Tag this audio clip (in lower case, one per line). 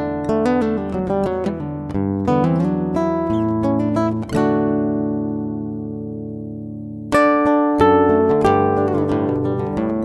music